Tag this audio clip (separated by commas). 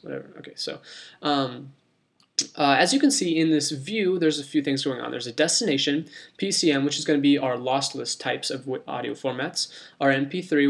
Speech